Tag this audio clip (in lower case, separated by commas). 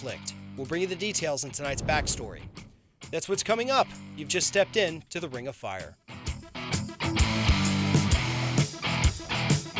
man speaking, music, speech